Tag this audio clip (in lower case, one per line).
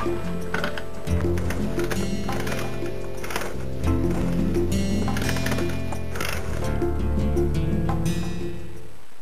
mechanisms